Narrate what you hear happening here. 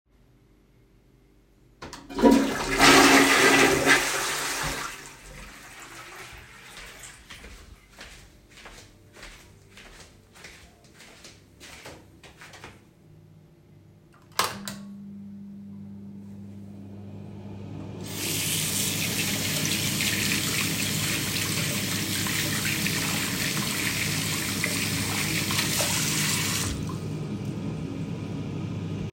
I flushed the toilet and I walked across the hallway to the bathroom then i turned the light and fan on. Finally i opened tab water and washed my hands and stop the running water.